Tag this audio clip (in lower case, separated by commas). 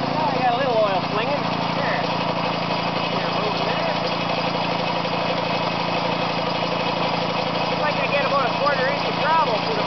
engine, speech